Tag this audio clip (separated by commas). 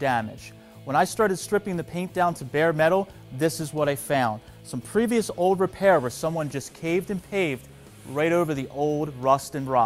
Music, Speech